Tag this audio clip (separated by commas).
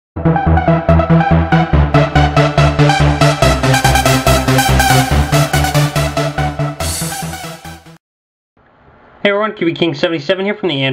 Techno, Music, Speech